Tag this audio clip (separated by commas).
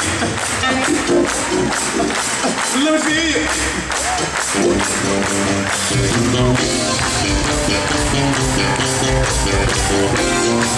Music, Speech, Jazz